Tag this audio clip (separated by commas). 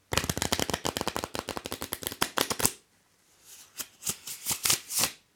Domestic sounds